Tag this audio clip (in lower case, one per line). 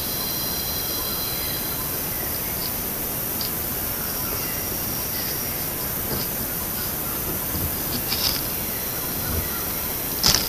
chimpanzee pant-hooting